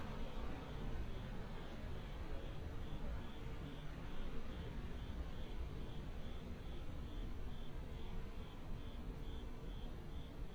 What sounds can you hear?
background noise